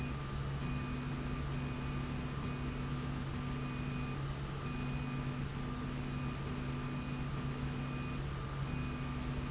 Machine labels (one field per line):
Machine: slide rail